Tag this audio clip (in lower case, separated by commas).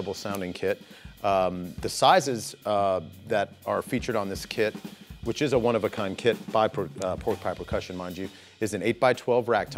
bass drum, drum, snare drum, rimshot, percussion, drum kit